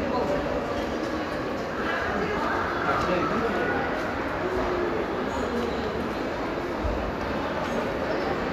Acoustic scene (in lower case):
crowded indoor space